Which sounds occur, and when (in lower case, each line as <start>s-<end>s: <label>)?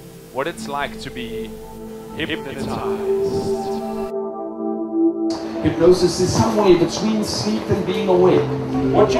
0.0s-9.1s: music
0.0s-9.1s: wind
0.3s-9.1s: conversation
0.3s-1.5s: man speaking
2.2s-3.1s: man speaking
3.2s-3.8s: breathing
5.6s-8.4s: man speaking